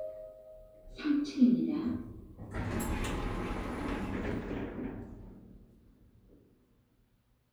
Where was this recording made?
in an elevator